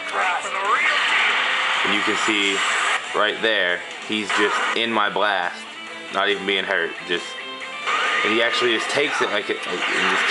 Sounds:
Music, Speech

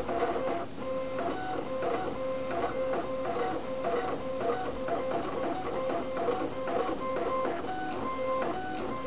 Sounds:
Printer

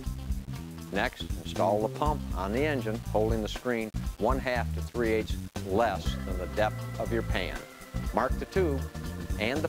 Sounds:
Speech, Music

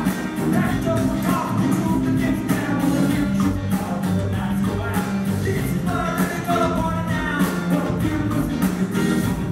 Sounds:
Music

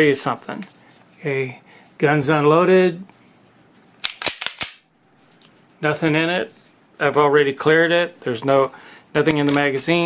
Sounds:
inside a small room, Speech

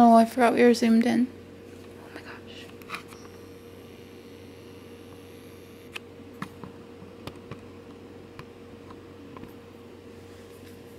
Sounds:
Speech

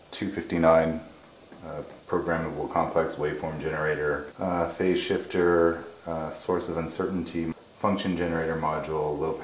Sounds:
Speech

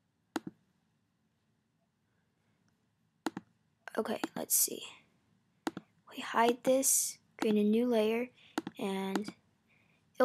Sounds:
Speech

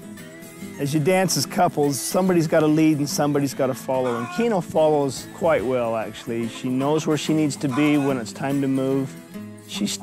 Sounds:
Music, Speech

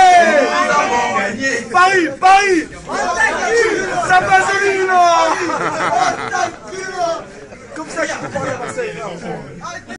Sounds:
Speech

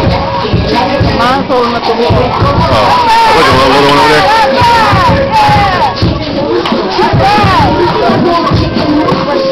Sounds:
Music, Speech

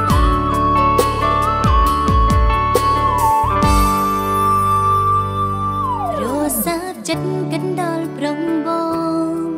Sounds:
Music

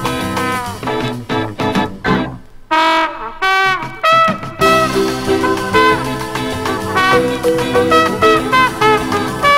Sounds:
Music

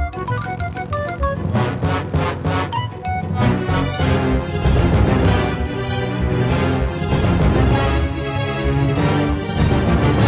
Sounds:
Funny music, Music

